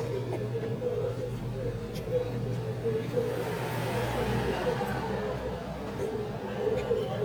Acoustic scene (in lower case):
restaurant